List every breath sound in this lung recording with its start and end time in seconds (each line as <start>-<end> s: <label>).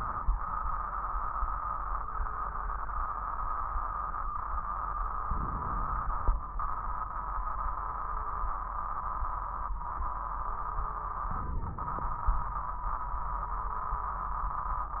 5.27-6.31 s: inhalation
5.27-6.31 s: crackles
11.34-12.38 s: inhalation
11.34-12.38 s: crackles